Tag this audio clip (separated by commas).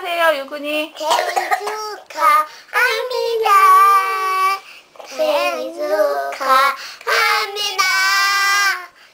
Child singing, Speech